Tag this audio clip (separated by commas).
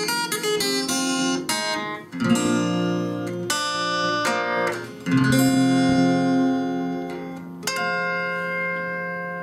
Guitar, Musical instrument, Plucked string instrument, Music, Acoustic guitar